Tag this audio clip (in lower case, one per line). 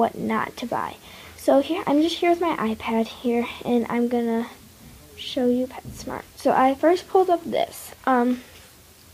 speech